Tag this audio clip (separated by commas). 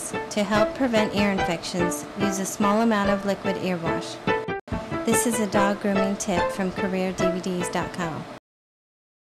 Music, Speech